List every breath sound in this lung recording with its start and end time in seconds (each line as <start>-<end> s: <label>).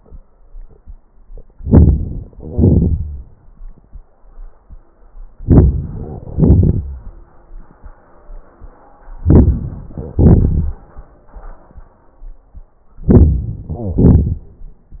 1.45-2.33 s: crackles
1.48-2.36 s: inhalation
2.36-3.81 s: exhalation
5.32-6.20 s: crackles
5.33-6.23 s: inhalation
6.21-7.98 s: exhalation
6.21-7.98 s: crackles
9.04-9.98 s: inhalation
9.99-11.74 s: exhalation
12.97-13.70 s: inhalation
13.66-14.80 s: crackles
13.71-14.02 s: wheeze